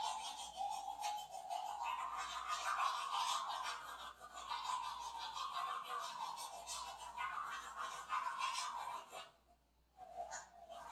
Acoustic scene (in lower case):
restroom